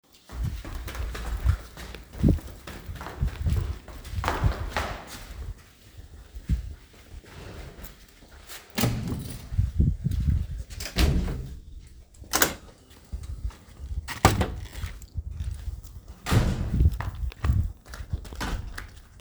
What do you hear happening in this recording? I walked down the stairs to the hallway. Then I took my keychain, opened the first door, and then I opened the second door.